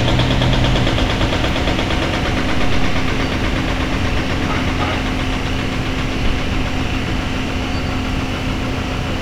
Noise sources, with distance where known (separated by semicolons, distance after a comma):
jackhammer, near